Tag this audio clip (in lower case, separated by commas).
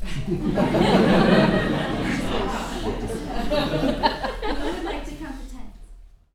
human voice, laughter